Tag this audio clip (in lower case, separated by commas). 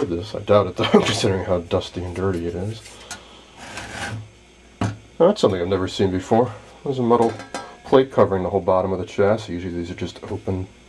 speech